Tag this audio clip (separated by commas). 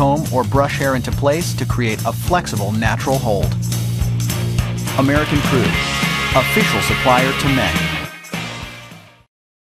Speech, Music